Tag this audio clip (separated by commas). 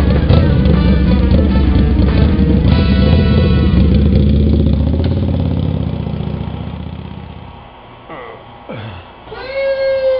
Music, Vehicle, Motorcycle